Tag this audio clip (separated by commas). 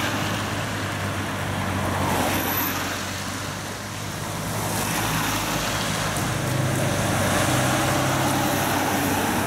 Run, Traffic noise